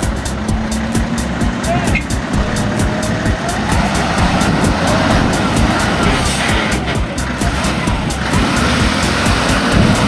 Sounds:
truck, music, motor vehicle (road), speech, vehicle

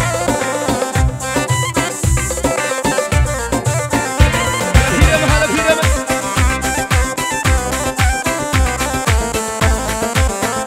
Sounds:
music

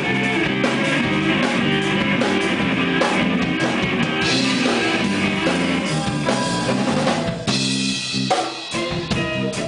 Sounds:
guitar, musical instrument, plucked string instrument, electric guitar, strum, music

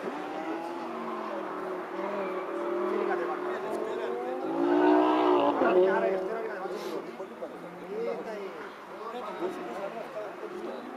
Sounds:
speech, race car, car, vehicle

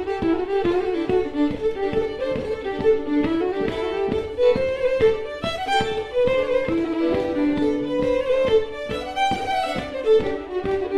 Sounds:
music, musical instrument, fiddle

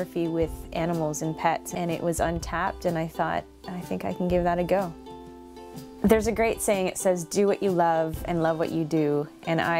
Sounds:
speech, music

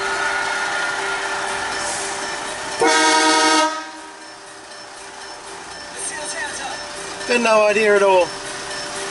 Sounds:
music, speech, vehicle horn, vehicle, car

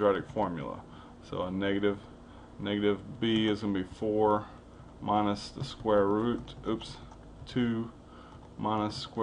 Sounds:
speech

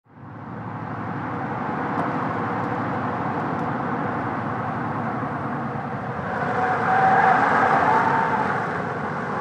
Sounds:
skidding

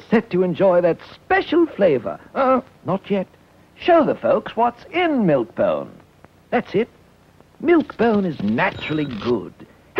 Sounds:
speech

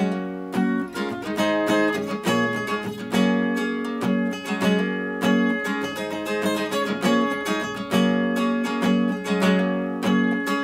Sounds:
music, acoustic guitar

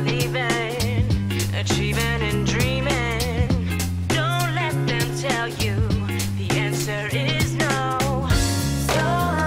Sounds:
pop music, dance music, music

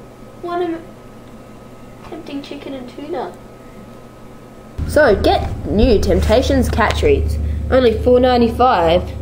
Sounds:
speech

